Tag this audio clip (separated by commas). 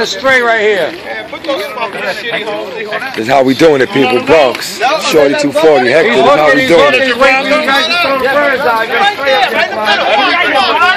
Speech